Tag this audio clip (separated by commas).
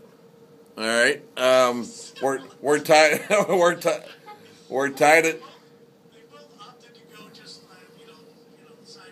Speech